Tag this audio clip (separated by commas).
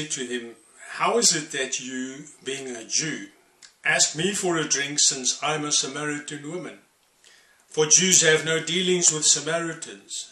Speech